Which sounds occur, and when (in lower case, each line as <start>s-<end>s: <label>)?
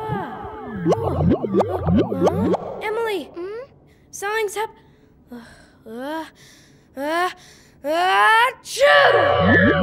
0.0s-0.4s: kid speaking
0.8s-2.6s: sound effect
0.8s-1.3s: human voice
1.5s-1.8s: human voice
2.2s-2.5s: human voice
2.8s-3.7s: kid speaking
3.8s-4.1s: breathing
4.1s-4.6s: kid speaking
4.7s-5.1s: breathing
5.3s-5.8s: breathing
5.3s-5.4s: human sounds
5.8s-6.3s: human sounds
6.3s-6.9s: breathing
6.9s-7.3s: human sounds
7.3s-7.8s: breathing
7.8s-8.5s: human sounds
8.6s-9.8s: sneeze
9.1s-9.8s: sound effect
9.5s-9.8s: human sounds